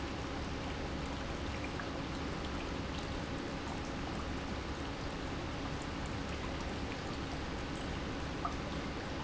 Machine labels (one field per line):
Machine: pump